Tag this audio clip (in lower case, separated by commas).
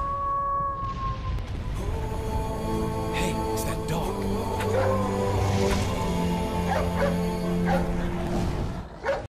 bow-wow, music, animal, speech, domestic animals, dog